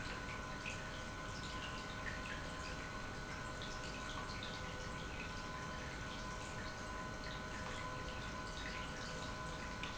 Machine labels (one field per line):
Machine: pump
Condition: normal